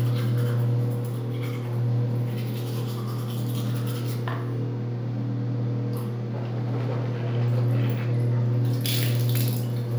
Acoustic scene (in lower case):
restroom